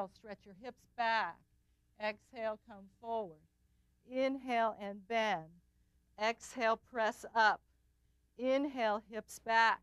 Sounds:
Speech

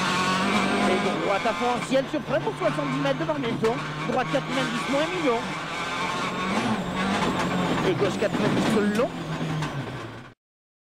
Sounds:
Motor vehicle (road), Speech, Vehicle, Car

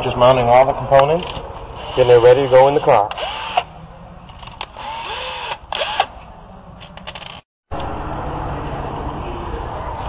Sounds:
Speech, inside a large room or hall

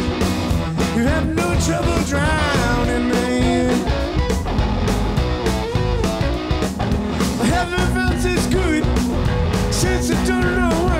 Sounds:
Music

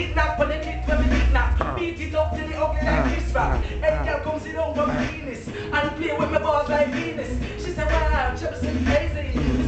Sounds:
Reggae, Music

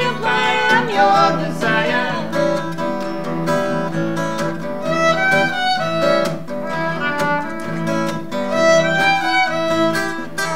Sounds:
Bowed string instrument, fiddle

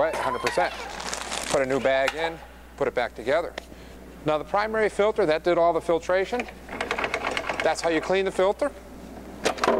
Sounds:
Speech

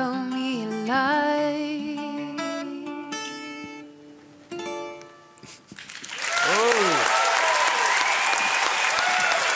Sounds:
Music, Applause, Singing

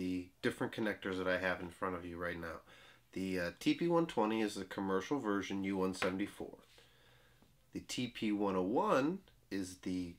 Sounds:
Speech

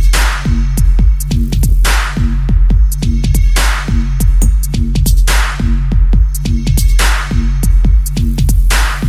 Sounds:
Electronic music, Dubstep, Music

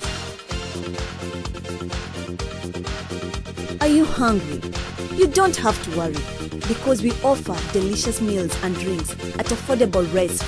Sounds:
House music, Music, Background music, Speech

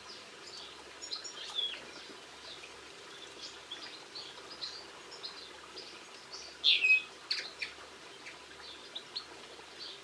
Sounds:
Bird vocalization, tweeting, Bird, tweet

